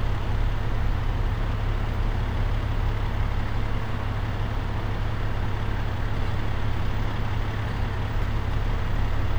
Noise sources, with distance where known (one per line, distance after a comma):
large-sounding engine, near